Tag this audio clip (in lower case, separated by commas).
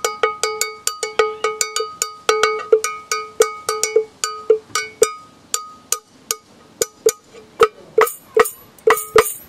music